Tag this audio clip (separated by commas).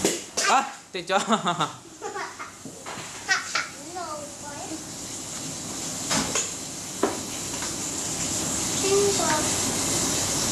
Speech